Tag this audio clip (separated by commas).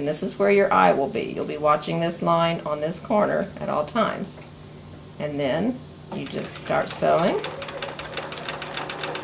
Speech, Sewing machine